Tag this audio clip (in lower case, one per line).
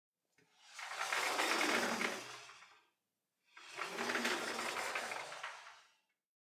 domestic sounds
sliding door
door